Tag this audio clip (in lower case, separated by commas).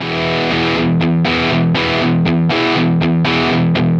plucked string instrument, music, musical instrument, guitar